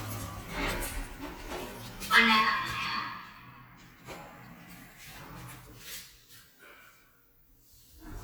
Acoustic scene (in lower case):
elevator